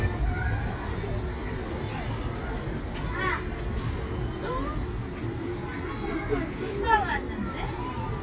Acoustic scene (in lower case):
residential area